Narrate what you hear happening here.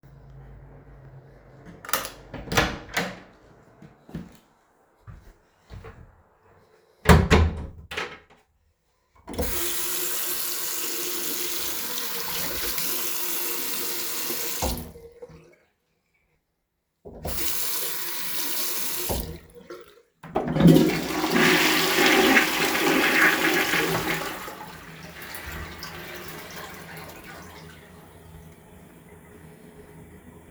I opened the bathroom door and moved inside. I briefly turned on the tap twice and then flushed the toilet. The bathroom exhaust fan is faintly audible in the background.